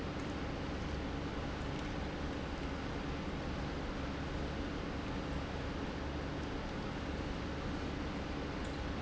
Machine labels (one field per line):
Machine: pump